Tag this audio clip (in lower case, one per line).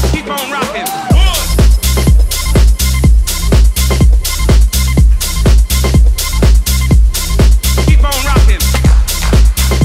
music
exciting music